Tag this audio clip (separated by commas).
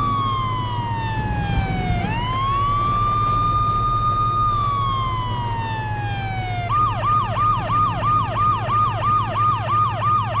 Police car (siren), Siren, Emergency vehicle, Ambulance (siren), ambulance siren